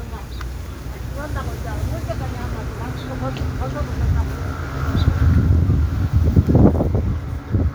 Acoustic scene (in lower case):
street